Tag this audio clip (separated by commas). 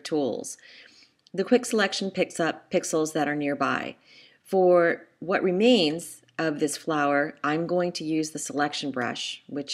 Speech